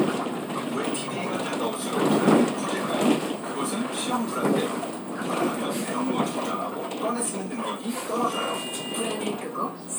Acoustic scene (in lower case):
bus